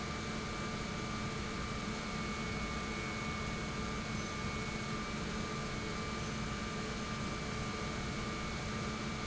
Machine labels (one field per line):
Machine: pump